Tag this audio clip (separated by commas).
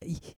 Breathing, Respiratory sounds